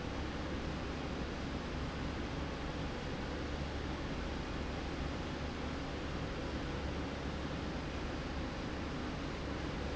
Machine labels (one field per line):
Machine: slide rail